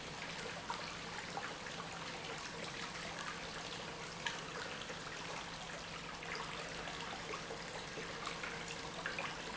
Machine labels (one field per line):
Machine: pump